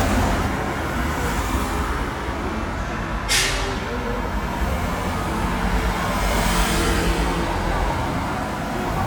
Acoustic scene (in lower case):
street